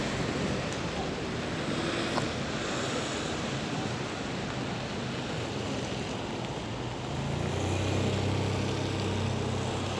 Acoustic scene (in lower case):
street